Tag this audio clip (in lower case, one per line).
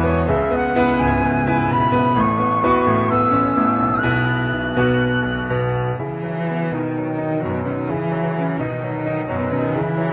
music